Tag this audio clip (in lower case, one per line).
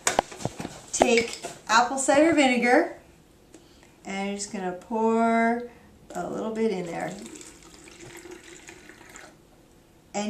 speech
faucet